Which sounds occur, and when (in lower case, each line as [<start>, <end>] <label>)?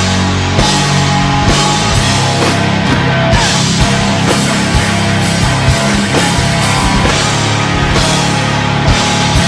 [0.01, 9.45] music